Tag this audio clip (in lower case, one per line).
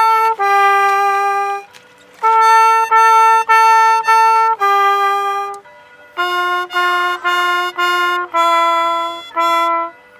music
stream